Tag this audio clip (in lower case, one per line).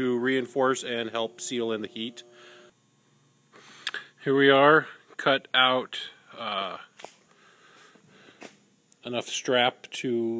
speech